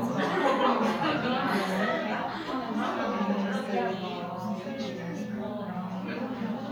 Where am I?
in a crowded indoor space